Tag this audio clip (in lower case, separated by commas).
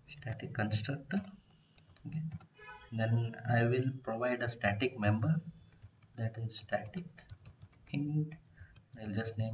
speech